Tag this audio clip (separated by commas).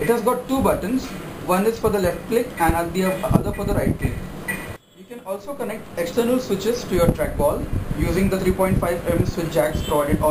Speech